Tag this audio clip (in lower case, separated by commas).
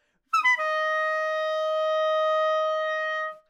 musical instrument, music, woodwind instrument